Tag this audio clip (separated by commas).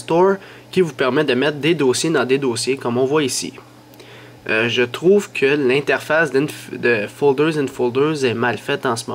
Speech